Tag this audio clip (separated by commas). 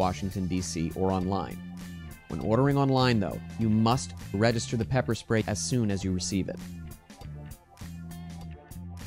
Speech, Music